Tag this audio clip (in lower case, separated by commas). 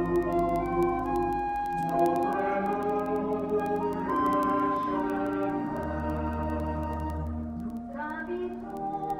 music